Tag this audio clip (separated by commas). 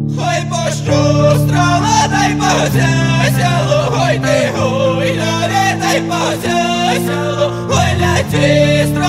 Music